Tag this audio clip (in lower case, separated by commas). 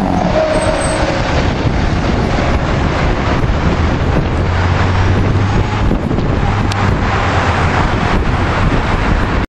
engine, truck, heavy engine (low frequency), vehicle